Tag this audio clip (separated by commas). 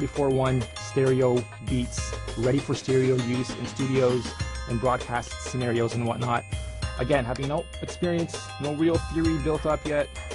Speech, Music